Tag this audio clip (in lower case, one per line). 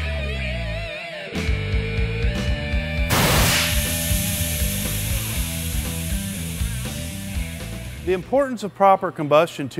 speech
music